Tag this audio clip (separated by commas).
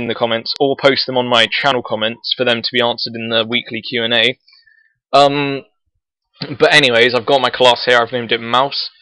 Speech